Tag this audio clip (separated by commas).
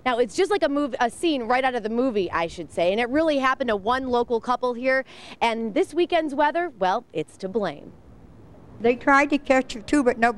Speech